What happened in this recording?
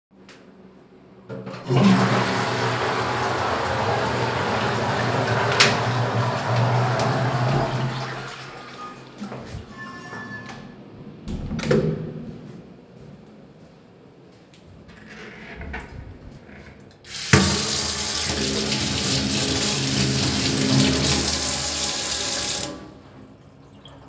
I flushed the toilet, left the cubicl and washed my hand.